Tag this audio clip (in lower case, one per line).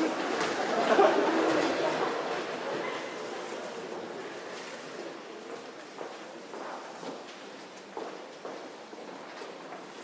speech